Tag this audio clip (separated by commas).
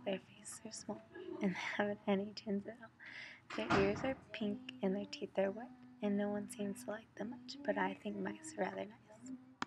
Speech